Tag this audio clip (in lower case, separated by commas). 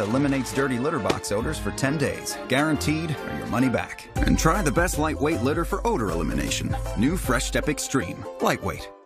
speech, music